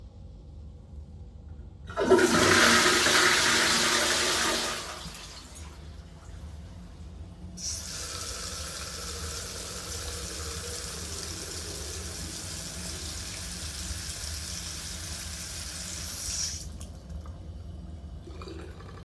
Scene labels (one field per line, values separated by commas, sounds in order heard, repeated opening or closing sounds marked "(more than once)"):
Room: bathroom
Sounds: toilet flushing, running water